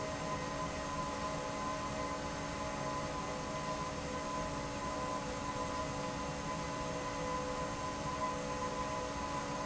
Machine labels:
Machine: fan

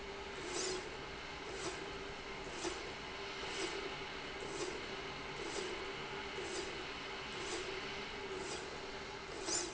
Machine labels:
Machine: slide rail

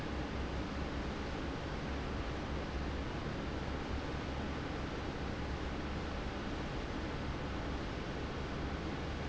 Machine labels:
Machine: fan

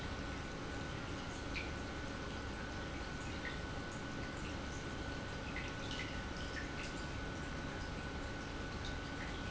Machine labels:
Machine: pump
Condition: normal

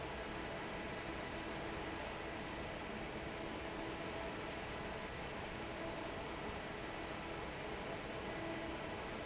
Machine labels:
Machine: fan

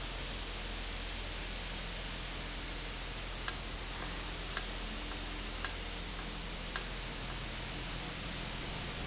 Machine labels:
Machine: valve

